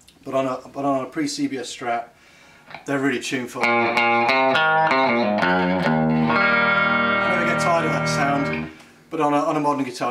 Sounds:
Music, Guitar, Musical instrument, Tapping (guitar technique), Plucked string instrument

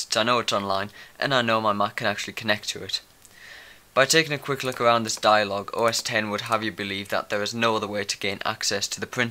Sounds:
Speech

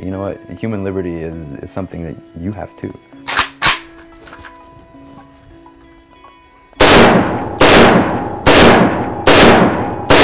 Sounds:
cap gun shooting

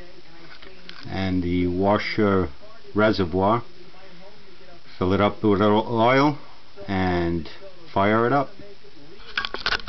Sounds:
Speech

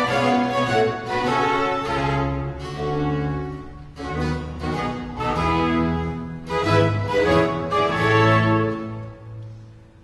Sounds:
String section

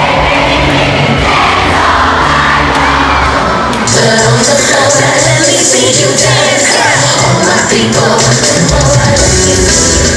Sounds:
Dance music, Music

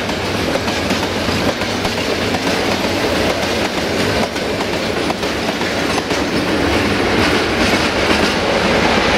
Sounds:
Train, Railroad car, Rail transport, Vehicle

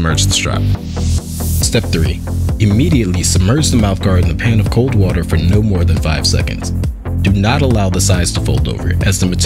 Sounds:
Music, Speech

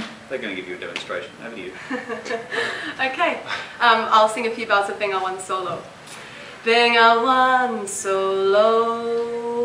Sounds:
Female singing, Speech

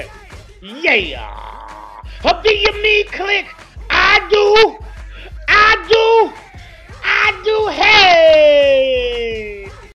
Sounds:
Speech, Music

